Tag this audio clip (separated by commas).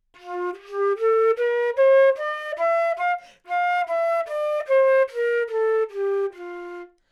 Music, Musical instrument, woodwind instrument